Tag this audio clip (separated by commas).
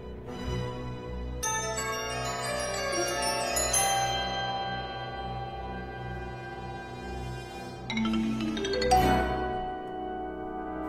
Marimba, Mallet percussion, Glockenspiel